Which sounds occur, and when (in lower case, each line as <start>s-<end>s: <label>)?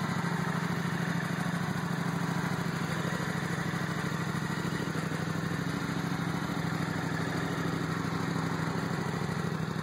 0.0s-9.8s: motorcycle